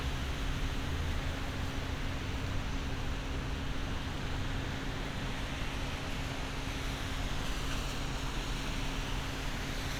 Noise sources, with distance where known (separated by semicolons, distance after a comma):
engine of unclear size